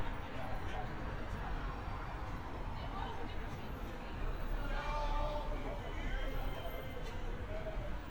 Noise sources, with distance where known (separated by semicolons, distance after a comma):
person or small group talking, near; person or small group shouting, far